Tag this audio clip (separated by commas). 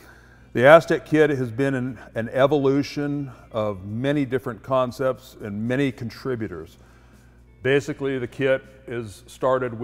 Speech